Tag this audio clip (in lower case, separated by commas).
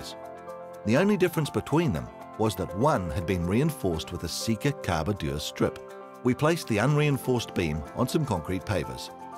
speech, music